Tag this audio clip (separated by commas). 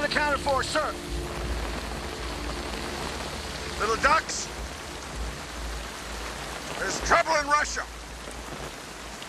Male speech, Speech, Narration